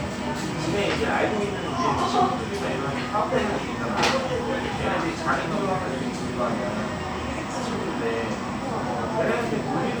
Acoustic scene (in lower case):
cafe